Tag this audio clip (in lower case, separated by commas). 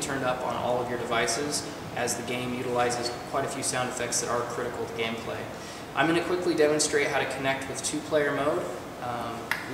speech